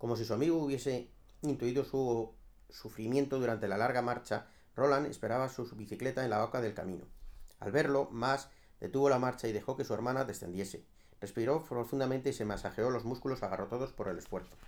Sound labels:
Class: speech